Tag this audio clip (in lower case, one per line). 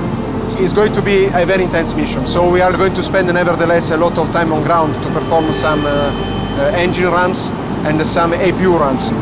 music
speech
engine